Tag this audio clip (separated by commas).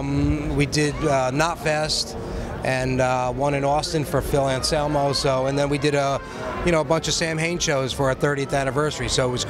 Music, Speech